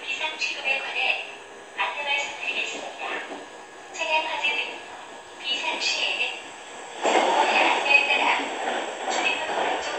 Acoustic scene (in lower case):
subway train